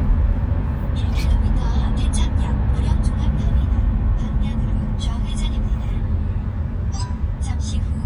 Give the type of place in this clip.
car